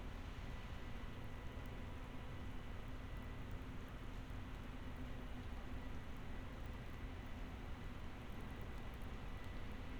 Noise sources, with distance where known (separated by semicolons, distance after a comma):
background noise